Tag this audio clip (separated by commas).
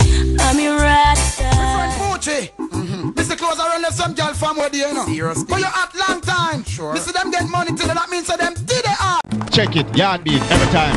Speech, Music